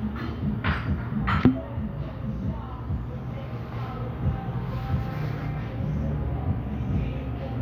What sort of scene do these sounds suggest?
cafe